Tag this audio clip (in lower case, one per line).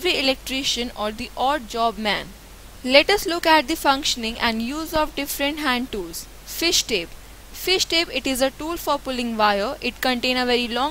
speech